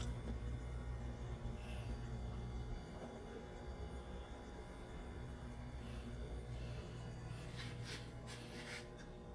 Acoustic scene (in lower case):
kitchen